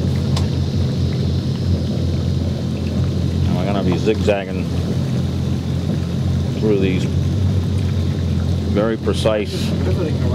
A man is speaking while traveling in motorboat